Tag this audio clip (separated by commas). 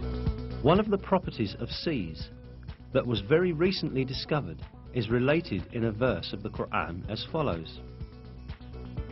Speech, Music